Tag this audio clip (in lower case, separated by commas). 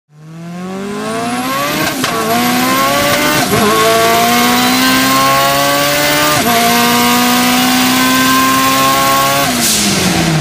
vehicle, auto racing, car